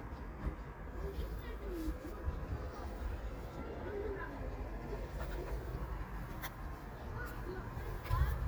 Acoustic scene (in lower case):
park